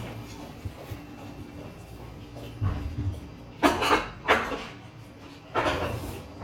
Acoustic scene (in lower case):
restaurant